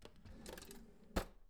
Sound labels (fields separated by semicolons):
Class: drawer; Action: opening; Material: wooden